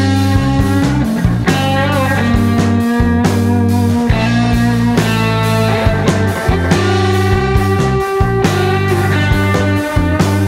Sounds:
psychedelic rock, music

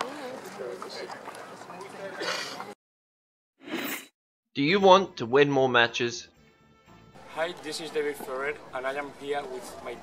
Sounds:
music, outside, rural or natural, speech

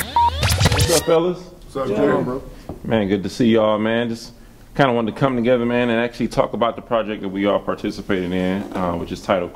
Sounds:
speech

